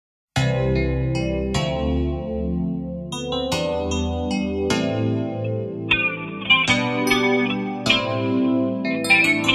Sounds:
electric piano

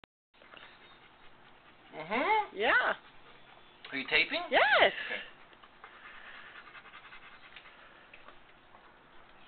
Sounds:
animal
dog
speech

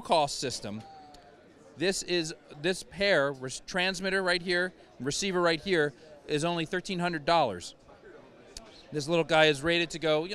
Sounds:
speech

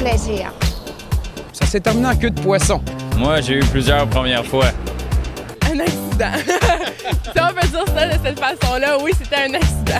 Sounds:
music
speech

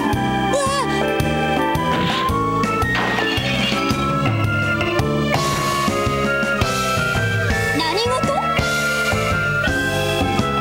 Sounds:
music

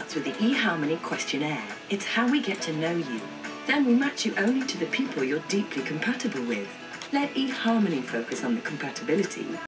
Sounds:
speech
music

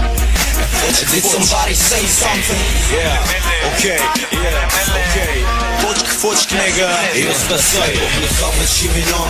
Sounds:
music

